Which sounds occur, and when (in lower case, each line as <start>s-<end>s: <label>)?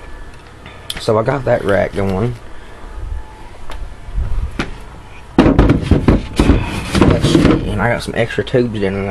0.0s-9.1s: mechanisms
0.2s-0.4s: generic impact sounds
0.6s-0.8s: generic impact sounds
0.8s-0.9s: tick
0.9s-2.3s: male speech
2.0s-2.1s: tick
2.3s-2.4s: generic impact sounds
2.8s-3.2s: wind noise (microphone)
3.6s-4.6s: wind noise (microphone)
3.6s-3.7s: tick
4.1s-4.3s: generic impact sounds
4.5s-4.7s: thump
5.0s-5.2s: generic impact sounds
5.4s-6.2s: thump
6.3s-7.5s: thump
6.9s-9.1s: male speech